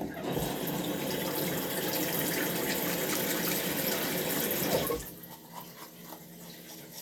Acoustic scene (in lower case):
restroom